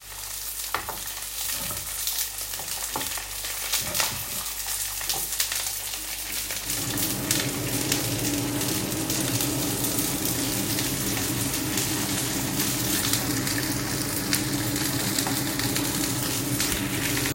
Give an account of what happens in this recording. I fried frozen food in a frying pan on the stove, and I started the vent hood.